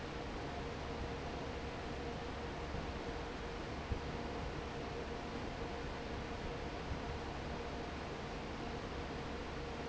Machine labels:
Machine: fan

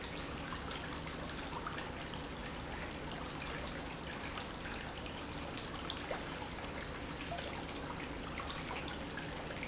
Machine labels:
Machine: pump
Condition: normal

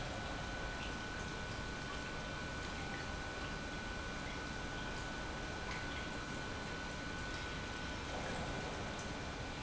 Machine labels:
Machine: pump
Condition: normal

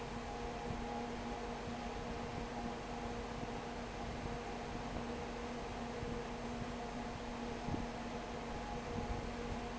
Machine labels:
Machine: fan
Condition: abnormal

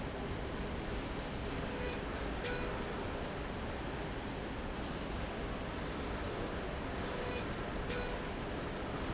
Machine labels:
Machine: slide rail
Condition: normal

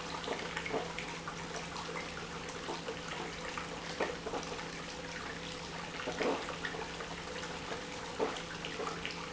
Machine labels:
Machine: pump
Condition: abnormal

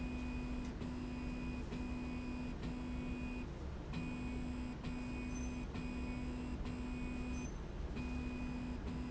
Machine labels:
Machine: slide rail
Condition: normal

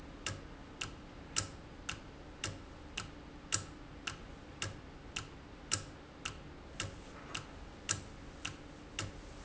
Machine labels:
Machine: valve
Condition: normal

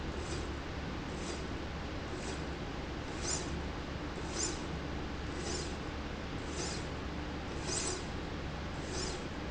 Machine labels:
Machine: slide rail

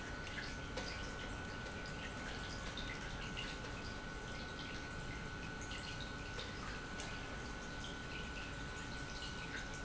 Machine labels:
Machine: pump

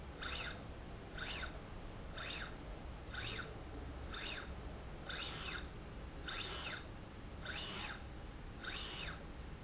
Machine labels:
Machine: slide rail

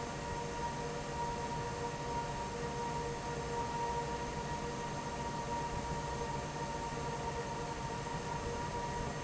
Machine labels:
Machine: fan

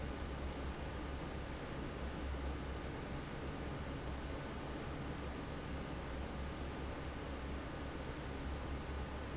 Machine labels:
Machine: fan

